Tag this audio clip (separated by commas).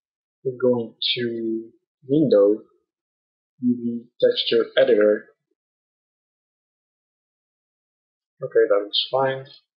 Speech